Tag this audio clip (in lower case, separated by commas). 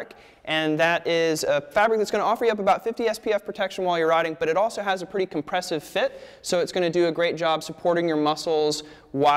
speech